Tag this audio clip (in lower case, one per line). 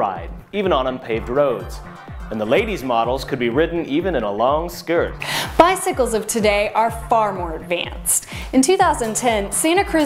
music
speech